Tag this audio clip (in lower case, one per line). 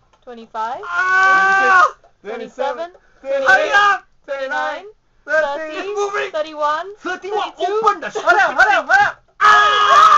inside a small room
speech